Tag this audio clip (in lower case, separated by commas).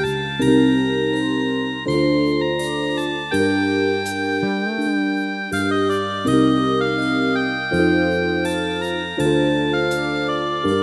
music, soul music